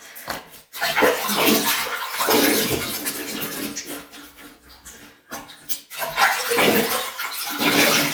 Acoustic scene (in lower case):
restroom